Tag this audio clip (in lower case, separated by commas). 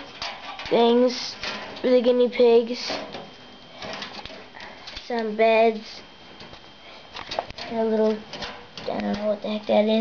speech